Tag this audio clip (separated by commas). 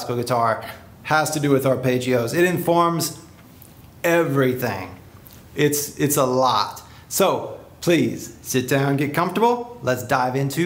Speech